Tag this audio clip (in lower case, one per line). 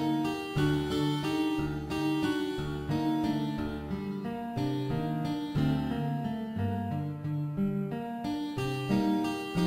harpsichord
music